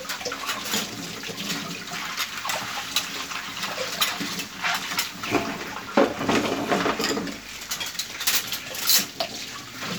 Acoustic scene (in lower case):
kitchen